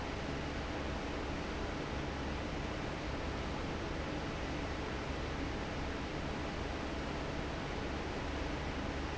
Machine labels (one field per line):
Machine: fan